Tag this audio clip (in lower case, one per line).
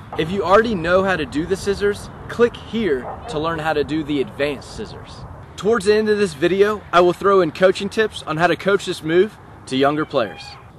speech